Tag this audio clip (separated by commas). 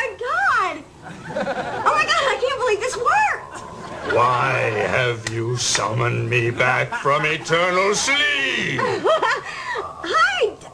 Speech